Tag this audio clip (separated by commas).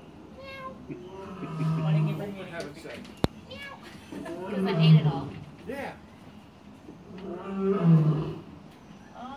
lions roaring